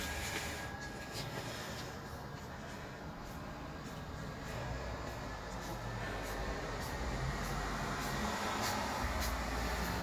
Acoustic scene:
street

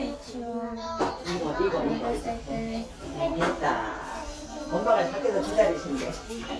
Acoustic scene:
crowded indoor space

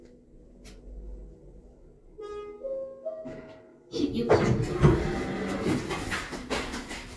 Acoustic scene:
elevator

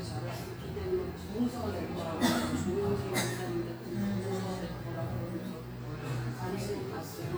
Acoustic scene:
cafe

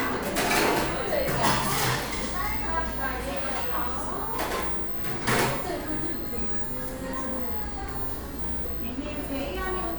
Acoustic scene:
cafe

